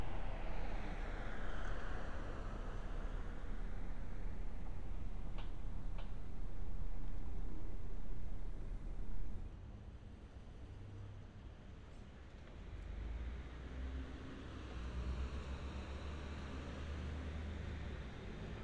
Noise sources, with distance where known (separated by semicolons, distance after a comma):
medium-sounding engine